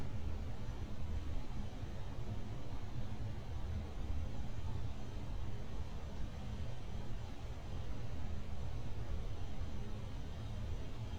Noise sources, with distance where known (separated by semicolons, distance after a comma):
background noise